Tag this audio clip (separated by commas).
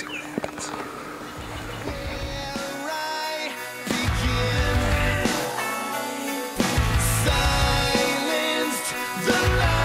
Speech, Rhythm and blues, Music